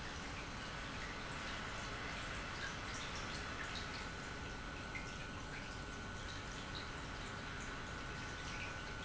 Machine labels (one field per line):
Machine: pump